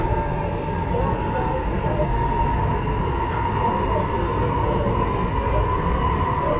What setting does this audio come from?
subway train